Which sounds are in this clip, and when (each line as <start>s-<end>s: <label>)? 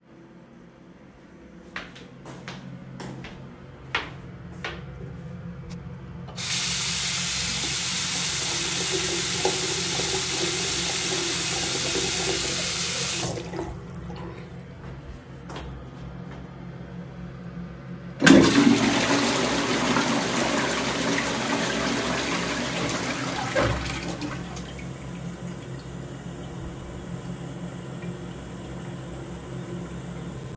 1.4s-6.1s: footsteps
6.3s-13.8s: running water
15.0s-17.2s: footsteps
18.1s-30.6s: toilet flushing